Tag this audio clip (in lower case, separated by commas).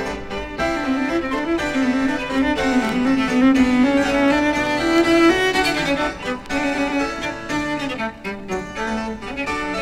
music, bowed string instrument